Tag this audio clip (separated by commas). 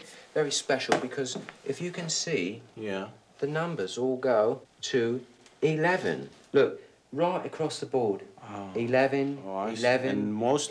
Speech